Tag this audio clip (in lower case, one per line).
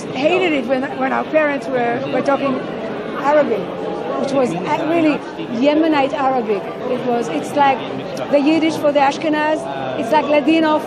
speech